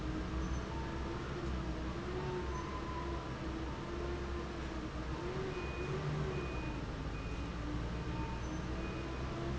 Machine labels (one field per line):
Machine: fan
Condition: normal